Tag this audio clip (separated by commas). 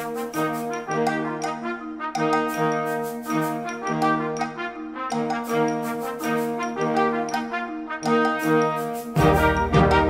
Harmonic, Music